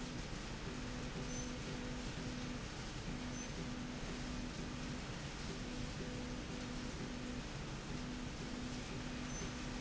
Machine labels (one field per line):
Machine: slide rail